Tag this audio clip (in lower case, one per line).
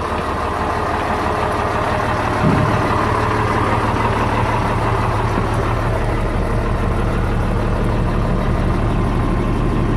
vehicle
truck